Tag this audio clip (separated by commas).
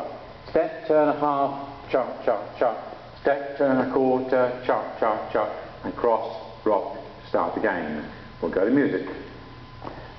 Speech